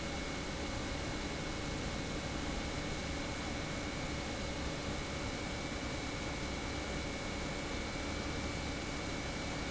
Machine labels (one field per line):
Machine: pump